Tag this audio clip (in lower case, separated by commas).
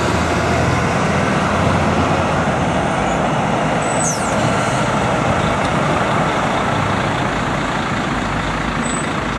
vehicle, truck